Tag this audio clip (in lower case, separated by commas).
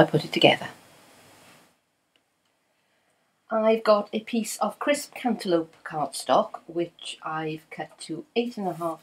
speech